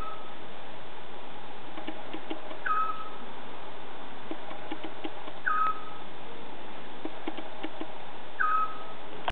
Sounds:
bird

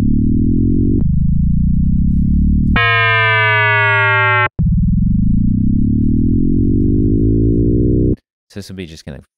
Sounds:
synthesizer
speech

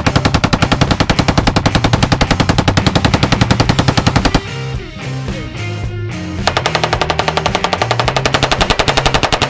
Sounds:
machine gun shooting

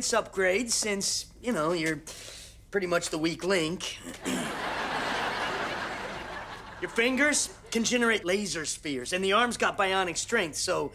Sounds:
speech

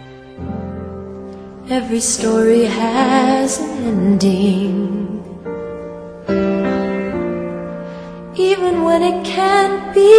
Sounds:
music

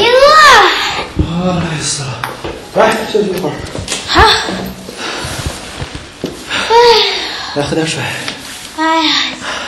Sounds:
inside a small room
speech

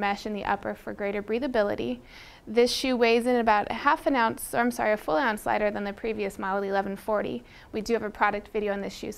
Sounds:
speech
inside a small room

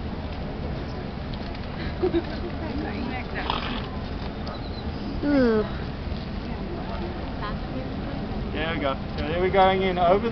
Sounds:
speech

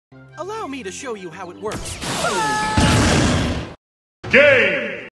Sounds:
speech

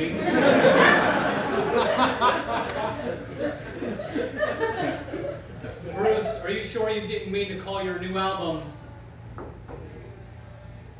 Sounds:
speech

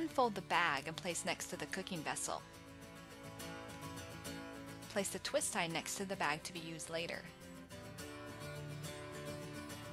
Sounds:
speech

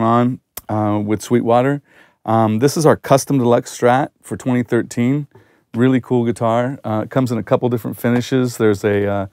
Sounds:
speech

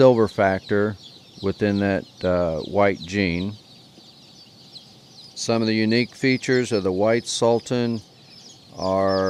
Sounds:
chicken
speech

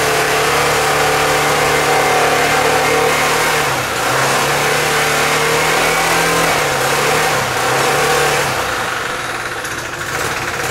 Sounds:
vroom
medium engine (mid frequency)
engine
inside a small room

